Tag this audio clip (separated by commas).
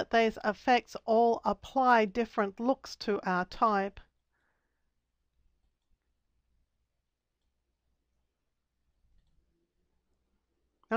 Speech, inside a small room